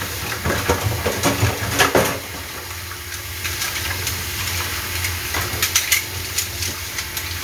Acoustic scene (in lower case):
kitchen